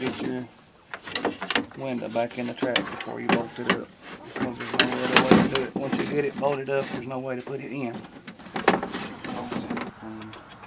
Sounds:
Car, Speech, Vehicle

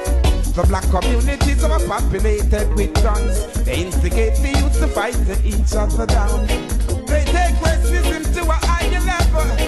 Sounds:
Music, Reggae

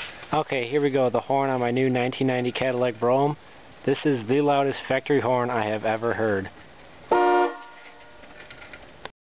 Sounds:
Speech, honking

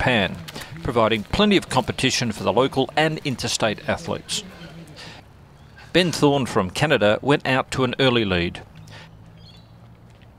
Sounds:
Run, outside, rural or natural, Speech

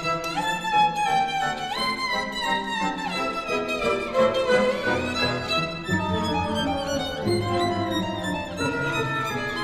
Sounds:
Musical instrument, Music, fiddle

